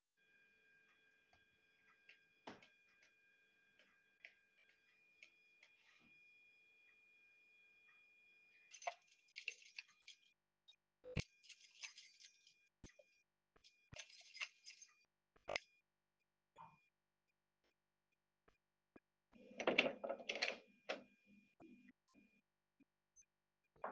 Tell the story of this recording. I walked to a door, unlocked it with my keychain, and opened the door.